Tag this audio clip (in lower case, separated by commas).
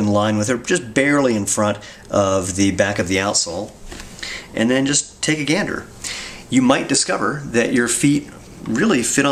inside a small room, speech